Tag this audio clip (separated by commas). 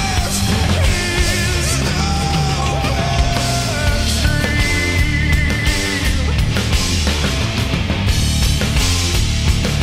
Music